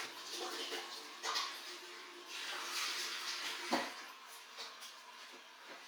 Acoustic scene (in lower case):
restroom